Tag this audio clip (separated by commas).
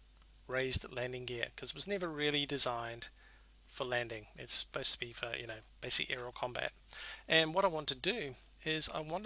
Speech